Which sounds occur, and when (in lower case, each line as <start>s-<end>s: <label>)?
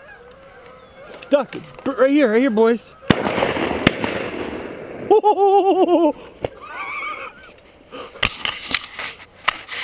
0.0s-3.1s: honk
1.8s-2.8s: male speech
6.4s-6.5s: tap
6.5s-7.8s: breathing
6.6s-7.5s: laughter
7.4s-7.6s: gunshot
7.8s-8.3s: gasp
7.9s-9.8s: surface contact